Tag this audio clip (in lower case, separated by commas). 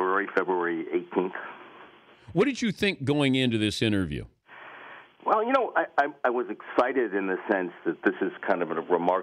speech